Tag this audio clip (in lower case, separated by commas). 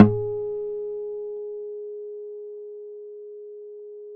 acoustic guitar, guitar, musical instrument, music, plucked string instrument